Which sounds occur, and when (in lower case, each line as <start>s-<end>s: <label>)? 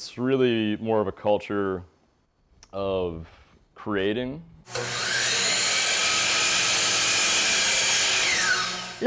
0.0s-1.8s: male speech
0.0s-9.0s: background noise
0.0s-9.0s: conversation
0.3s-0.3s: tick
2.6s-2.7s: tick
2.7s-3.2s: male speech
3.2s-3.6s: breathing
3.7s-4.4s: male speech
4.6s-9.0s: mechanisms